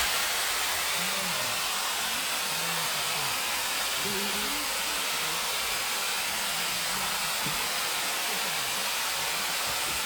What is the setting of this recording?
park